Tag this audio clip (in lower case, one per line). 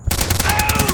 explosion
gunfire